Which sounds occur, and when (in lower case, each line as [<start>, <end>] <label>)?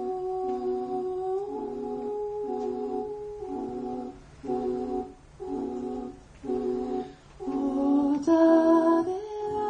[0.00, 9.65] mechanisms
[7.38, 9.65] music
[7.42, 9.65] female singing